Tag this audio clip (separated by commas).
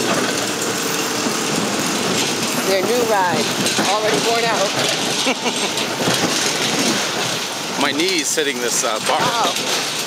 Speech, outside, urban or man-made